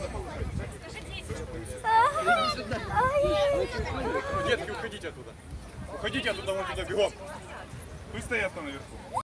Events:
0.0s-9.2s: hubbub
1.8s-4.8s: human voice
4.3s-5.3s: male speech
5.7s-7.3s: male speech
8.1s-8.8s: male speech

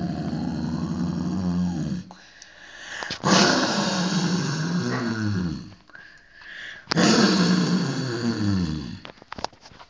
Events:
0.0s-2.1s: human sounds
0.0s-9.8s: background noise
2.1s-3.1s: breathing
2.4s-2.5s: tick
3.0s-3.2s: generic impact sounds
3.2s-5.8s: human sounds
5.7s-6.2s: generic impact sounds
6.0s-6.9s: breathing
6.4s-6.5s: generic impact sounds
6.9s-7.0s: generic impact sounds
6.9s-9.1s: human sounds
9.1s-9.8s: generic impact sounds

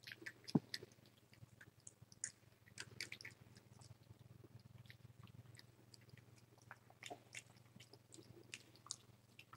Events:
0.0s-0.3s: mastication
0.0s-9.5s: background noise
0.4s-0.6s: mastication
0.7s-0.9s: mastication
1.0s-1.4s: mastication
1.6s-2.3s: mastication
2.6s-3.3s: mastication
3.5s-3.9s: mastication
4.0s-4.2s: mastication
4.6s-4.7s: mastication
4.8s-5.3s: mastication
5.4s-6.8s: mastication
7.0s-7.4s: mastication
7.5s-8.0s: mastication
8.1s-9.0s: mastication
9.2s-9.5s: mastication

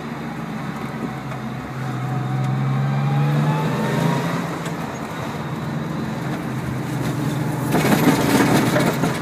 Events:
0.0s-9.2s: motor vehicle (road)
1.3s-1.3s: tap
4.9s-5.0s: squeal
7.7s-9.2s: generic impact sounds

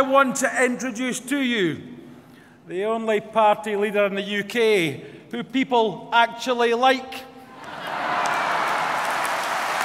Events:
0.0s-1.7s: man speaking
0.0s-9.8s: background noise
2.1s-2.7s: breathing
2.7s-5.0s: man speaking
5.3s-5.9s: man speaking
6.1s-7.3s: man speaking
7.5s-9.8s: crowd
7.6s-9.8s: clapping

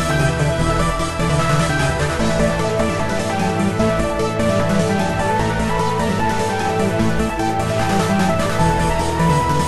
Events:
0.0s-9.6s: music

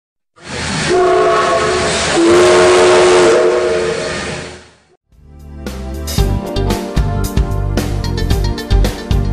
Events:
0.3s-4.9s: train whistle
0.3s-0.9s: sound effect
1.3s-3.3s: sound effect
3.6s-4.9s: sound effect
5.0s-9.3s: music

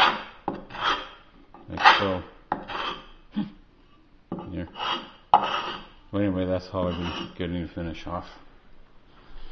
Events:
0.0s-0.3s: scratch
0.0s-9.5s: background noise
0.4s-0.7s: generic impact sounds
0.6s-1.2s: scratch
1.5s-1.7s: generic impact sounds
1.6s-2.3s: male speech
1.7s-2.2s: scratch
2.5s-2.6s: generic impact sounds
2.6s-3.0s: scratch
3.2s-3.5s: human sounds
4.2s-4.7s: male speech
4.3s-4.5s: generic impact sounds
4.6s-5.1s: scratch
5.3s-5.4s: generic impact sounds
5.3s-5.9s: scratch
6.1s-8.3s: male speech
6.9s-7.4s: scratch
8.0s-8.5s: breathing
9.1s-9.5s: breathing

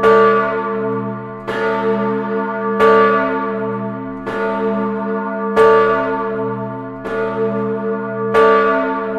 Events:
0.0s-9.1s: church bell

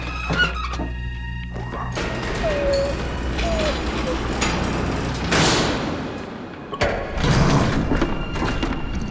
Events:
0.0s-0.9s: generic impact sounds
0.0s-9.1s: music
1.7s-5.4s: sliding door
2.8s-3.1s: squeal
4.5s-4.7s: generic impact sounds
5.4s-6.5s: slam
6.9s-9.1s: mechanisms
6.9s-8.2s: generic impact sounds
8.4s-8.8s: generic impact sounds

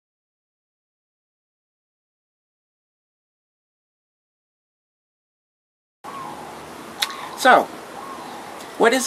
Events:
6.1s-9.0s: bird
7.4s-7.9s: female speech

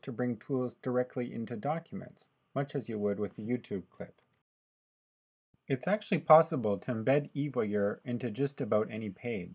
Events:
0.0s-2.3s: man speaking
0.0s-4.4s: background noise
2.5s-4.1s: man speaking
4.1s-4.4s: clicking
5.5s-9.5s: background noise
5.7s-9.5s: man speaking

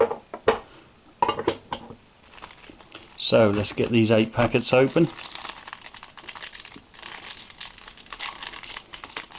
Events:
0.0s-9.3s: mechanisms
1.2s-1.9s: dishes, pots and pans
3.1s-5.1s: male speech
8.9s-9.3s: crumpling

